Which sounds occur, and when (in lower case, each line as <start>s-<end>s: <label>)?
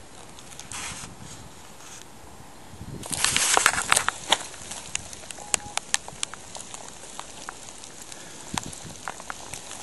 0.0s-2.0s: generic impact sounds
0.0s-9.8s: wind
0.5s-1.5s: wind noise (microphone)
0.5s-0.6s: tick
2.7s-4.5s: wind noise (microphone)
2.9s-5.3s: generic impact sounds
4.1s-4.1s: tick
4.3s-4.4s: tick
4.9s-5.0s: tick
5.3s-5.3s: tick
5.5s-5.6s: tick
5.7s-5.8s: tick
5.9s-6.0s: tick
6.2s-6.2s: tick
6.4s-8.2s: generic impact sounds
6.5s-6.6s: tick
6.7s-6.8s: tick
7.2s-7.2s: tick
7.4s-7.5s: tick
7.8s-7.8s: tick
8.1s-8.1s: tick
8.5s-9.0s: wind noise (microphone)
8.5s-8.6s: tick
9.0s-9.1s: tick
9.3s-9.3s: tick
9.3s-9.8s: generic impact sounds
9.5s-9.6s: tick
9.7s-9.7s: tick